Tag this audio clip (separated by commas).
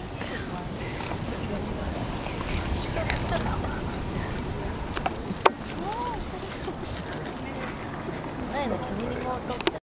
Speech